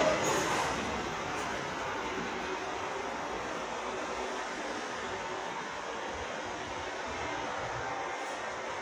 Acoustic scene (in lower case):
subway station